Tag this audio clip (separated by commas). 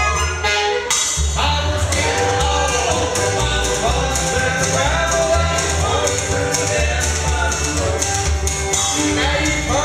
Music